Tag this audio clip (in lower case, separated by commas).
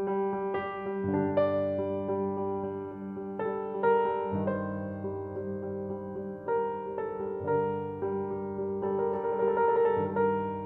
music